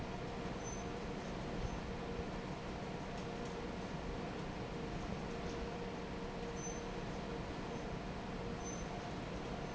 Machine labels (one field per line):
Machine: fan